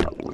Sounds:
Water, Gurgling

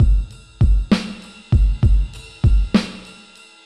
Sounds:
Musical instrument, Percussion, Music, Drum kit

